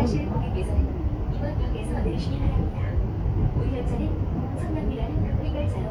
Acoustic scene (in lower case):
subway train